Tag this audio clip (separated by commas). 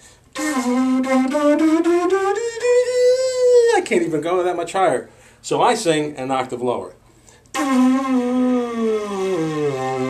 Wind instrument, Flute